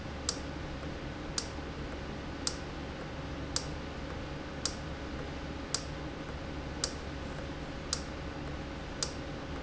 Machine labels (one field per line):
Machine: valve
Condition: normal